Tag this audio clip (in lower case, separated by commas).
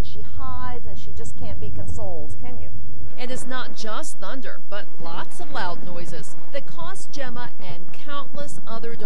speech